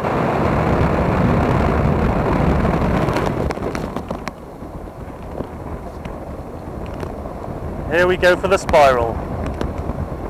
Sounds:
speech

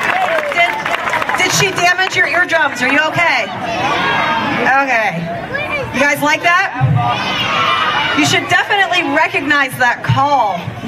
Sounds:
cheering
crowd

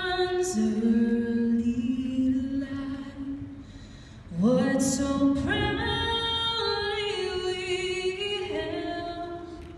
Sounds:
female singing

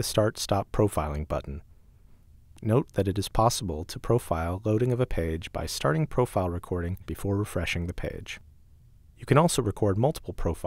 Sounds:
speech

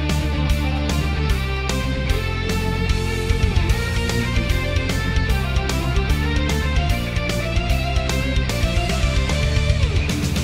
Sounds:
guitar
strum
music
musical instrument
plucked string instrument

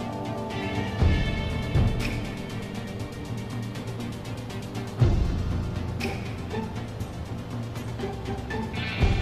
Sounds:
music

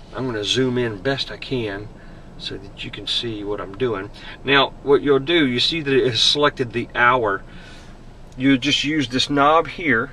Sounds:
speech

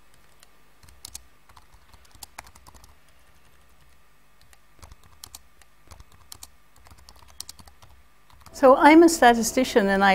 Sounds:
speech

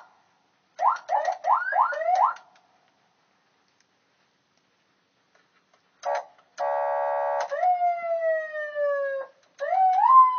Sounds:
siren

